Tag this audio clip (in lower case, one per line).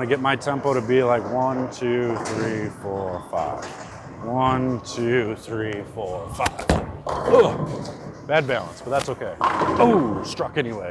bowling impact